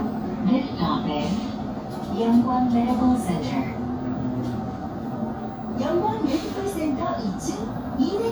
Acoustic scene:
bus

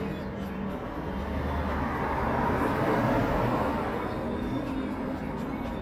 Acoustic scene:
street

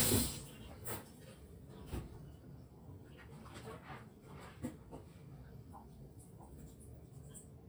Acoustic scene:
kitchen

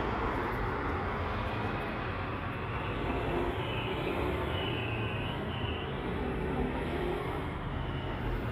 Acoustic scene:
street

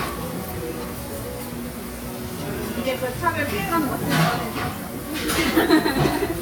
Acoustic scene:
restaurant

